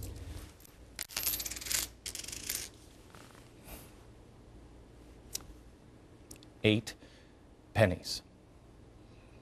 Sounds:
speech

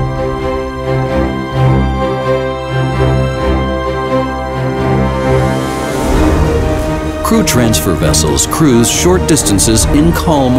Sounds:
speech
music

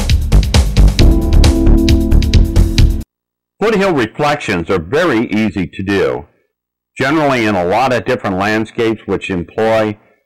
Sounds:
music
speech

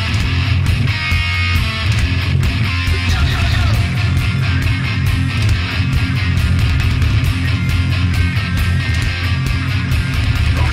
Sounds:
music

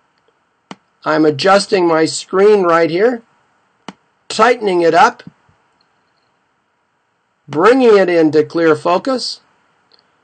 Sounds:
speech

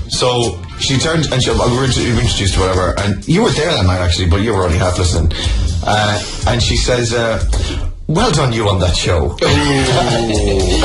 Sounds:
speech
music

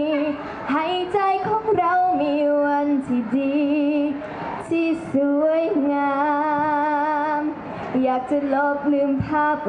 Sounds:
female singing

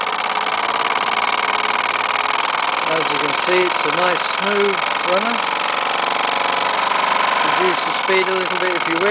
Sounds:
speech
engine

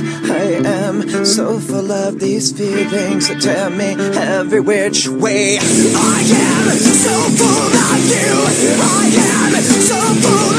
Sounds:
music

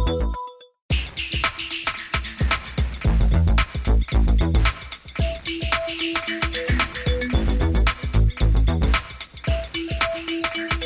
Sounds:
music

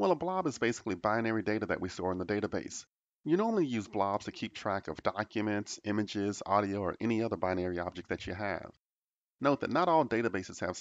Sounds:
speech

